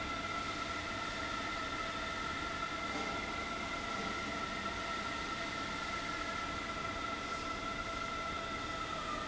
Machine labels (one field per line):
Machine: fan